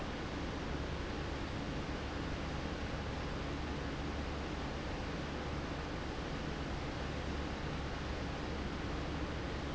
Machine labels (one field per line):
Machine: fan